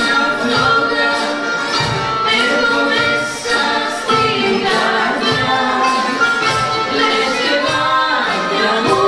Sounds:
Music, Traditional music

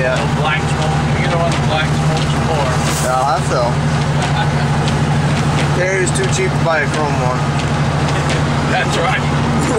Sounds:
Vehicle, Speech, Truck

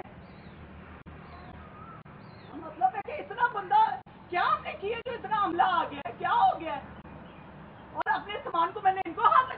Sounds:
Speech, outside, urban or man-made

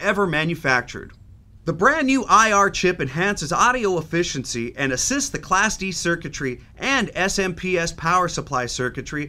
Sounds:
Speech

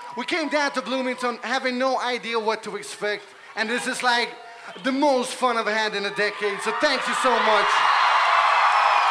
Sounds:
Speech

